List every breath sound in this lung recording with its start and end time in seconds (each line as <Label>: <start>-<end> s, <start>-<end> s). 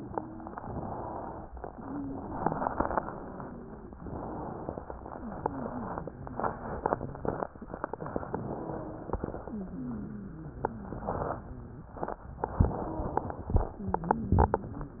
Inhalation: 0.61-1.44 s, 4.00-4.86 s, 8.29-9.15 s, 12.60-13.45 s
Exhalation: 1.67-3.95 s, 5.07-7.53 s, 9.47-11.94 s, 13.72-15.00 s
Wheeze: 1.67-3.95 s, 5.07-7.53 s, 8.29-9.15 s, 9.47-11.94 s, 12.60-13.45 s, 13.72-15.00 s
Crackles: 0.61-1.44 s, 4.00-4.86 s